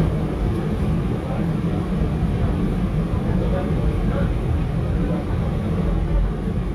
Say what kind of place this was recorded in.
subway train